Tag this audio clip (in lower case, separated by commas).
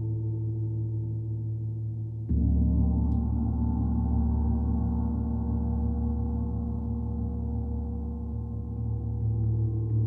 playing gong